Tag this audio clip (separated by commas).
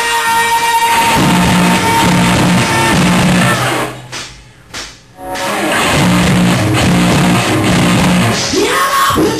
Bellow, Music